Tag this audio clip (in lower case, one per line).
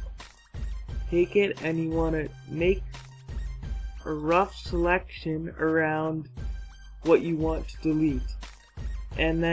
speech
music